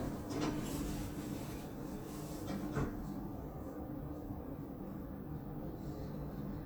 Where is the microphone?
in an elevator